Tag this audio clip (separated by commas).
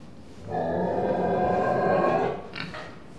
livestock, Animal